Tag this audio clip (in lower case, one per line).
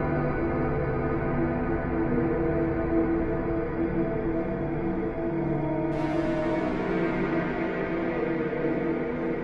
music